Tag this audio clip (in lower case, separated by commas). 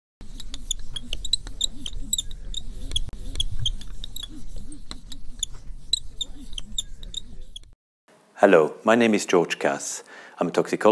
inside a small room, speech